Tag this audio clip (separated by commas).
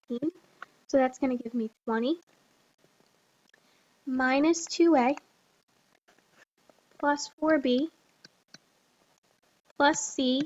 Speech